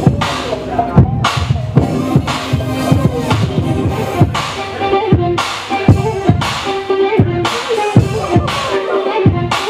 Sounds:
blues, music

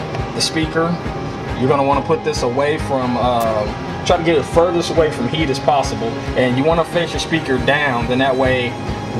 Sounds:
music, speech

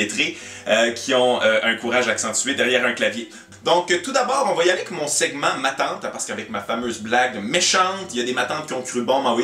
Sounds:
speech, music

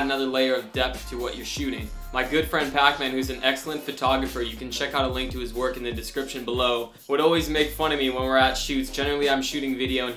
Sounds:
music, speech

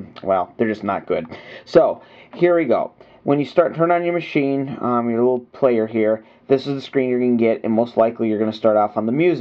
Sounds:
speech

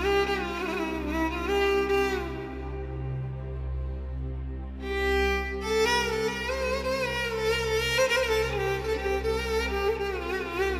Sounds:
violin, music

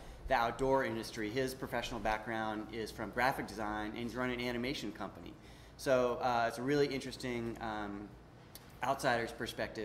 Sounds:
speech

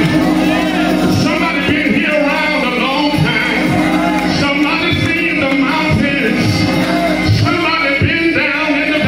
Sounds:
music, speech, male singing

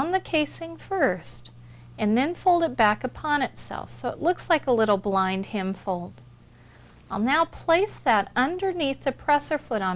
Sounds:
speech

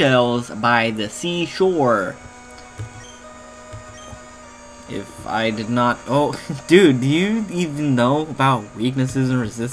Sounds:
music, speech

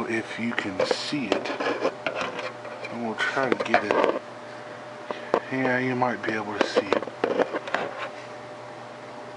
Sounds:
inside a small room, speech

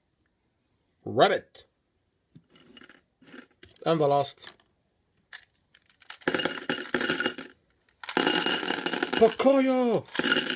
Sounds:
speech, inside a small room

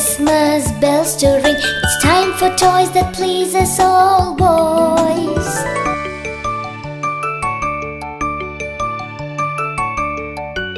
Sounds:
music, music for children

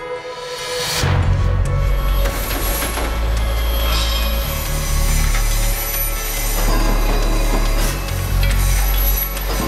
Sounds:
music

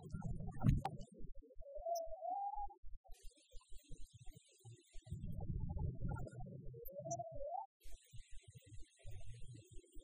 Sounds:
whale calling

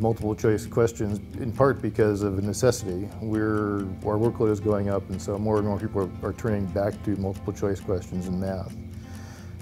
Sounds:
music, speech

